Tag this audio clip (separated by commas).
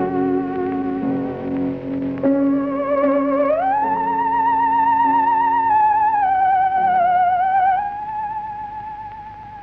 playing theremin